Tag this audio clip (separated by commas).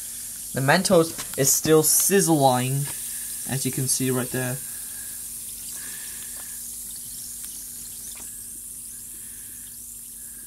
Liquid, Speech